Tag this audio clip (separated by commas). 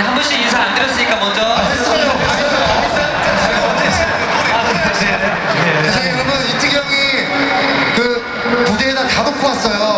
Speech